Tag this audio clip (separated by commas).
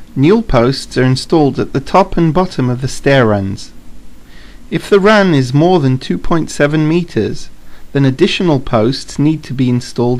Speech